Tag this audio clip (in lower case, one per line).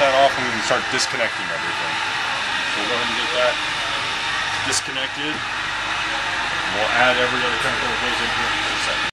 idling
vehicle
speech